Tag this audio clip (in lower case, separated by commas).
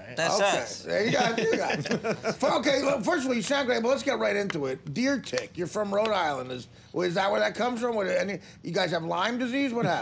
speech